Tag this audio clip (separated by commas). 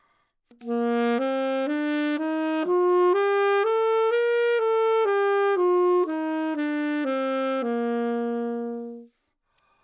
woodwind instrument, Musical instrument, Music